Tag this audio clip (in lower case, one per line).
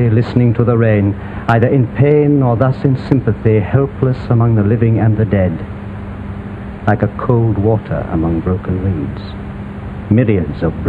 speech